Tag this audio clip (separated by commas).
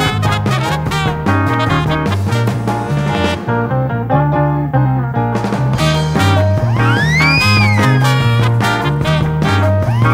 Music